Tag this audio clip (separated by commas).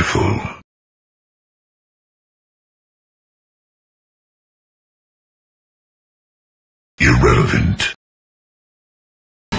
Sound effect, Speech